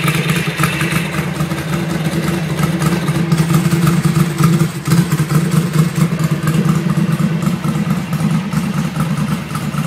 Ongoing engine running shuffling noise